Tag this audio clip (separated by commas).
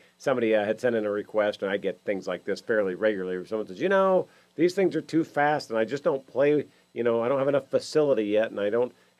Speech